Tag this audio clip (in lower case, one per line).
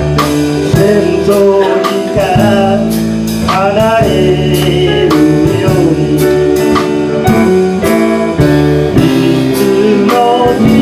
music
blues